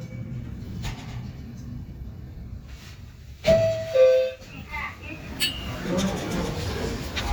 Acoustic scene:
elevator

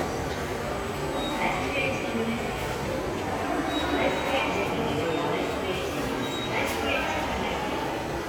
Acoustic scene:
subway station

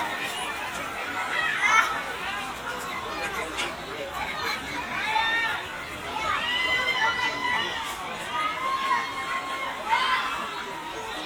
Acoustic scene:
park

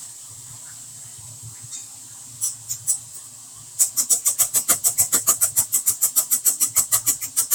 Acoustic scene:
kitchen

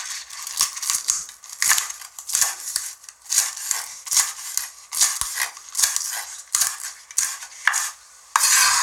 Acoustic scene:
kitchen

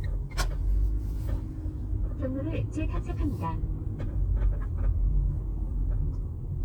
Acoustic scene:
car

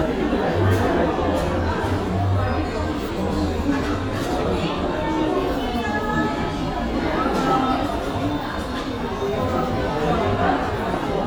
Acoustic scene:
cafe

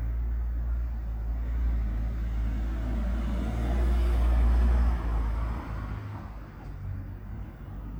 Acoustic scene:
residential area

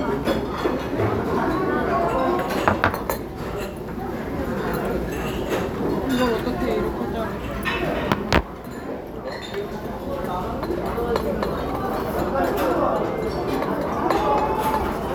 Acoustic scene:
restaurant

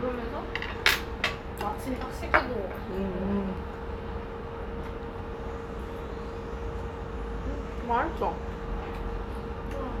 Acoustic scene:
restaurant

